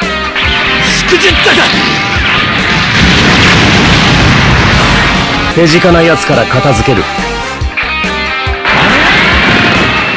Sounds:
Speech, Music

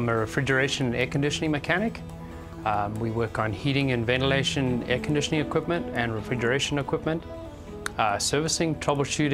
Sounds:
Music, Speech

